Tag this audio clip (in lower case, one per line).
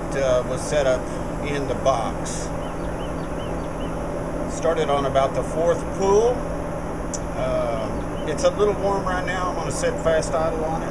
speech